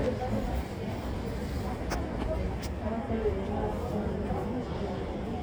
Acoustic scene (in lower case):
subway station